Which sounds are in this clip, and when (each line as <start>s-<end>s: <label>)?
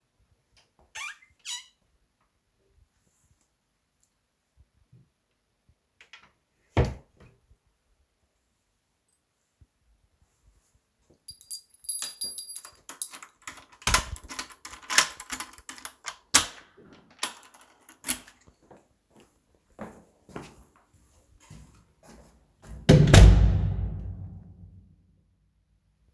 0.9s-1.7s: wardrobe or drawer
6.0s-7.4s: wardrobe or drawer
8.9s-9.4s: keys
11.2s-13.0s: keys
12.7s-18.4s: door
18.4s-22.8s: footsteps
22.6s-24.6s: door